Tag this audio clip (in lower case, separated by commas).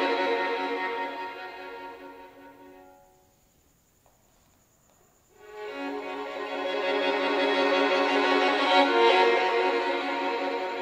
fiddle, musical instrument, music